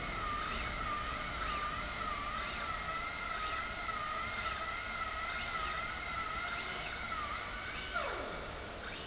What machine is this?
slide rail